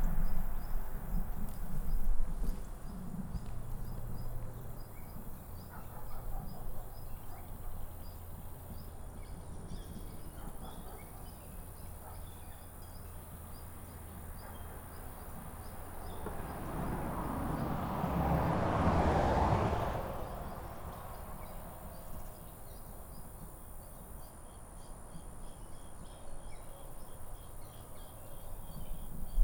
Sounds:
Animal, Motor vehicle (road), Vehicle, Insect, Wild animals, Cricket

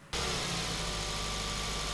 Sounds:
Car, Engine, Motor vehicle (road), Vehicle

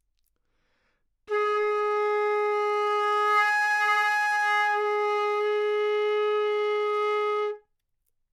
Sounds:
Wind instrument, Music, Musical instrument

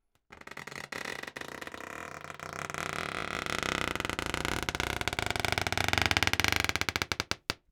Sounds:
Squeak

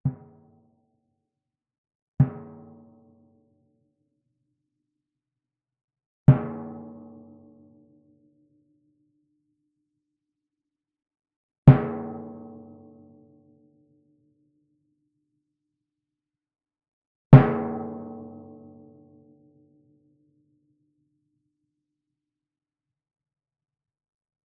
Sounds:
Musical instrument, Percussion, Drum, Music

